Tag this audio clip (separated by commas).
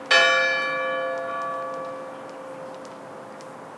Bell, Church bell